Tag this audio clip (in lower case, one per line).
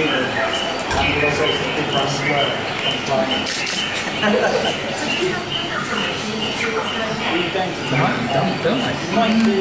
otter growling